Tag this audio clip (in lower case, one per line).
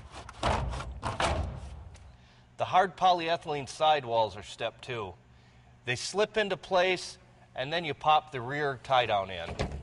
speech